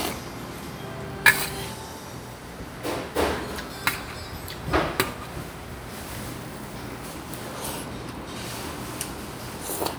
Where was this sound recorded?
in a restaurant